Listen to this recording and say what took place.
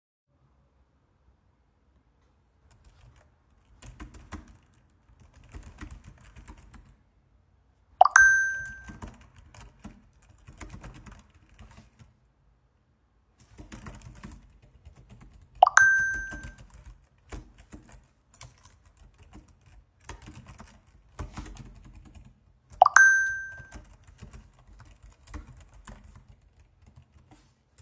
I typed on the keyboard and got multiple phone messages